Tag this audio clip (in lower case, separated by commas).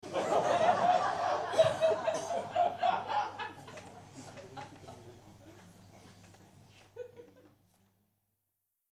crowd, human group actions, human voice, laughter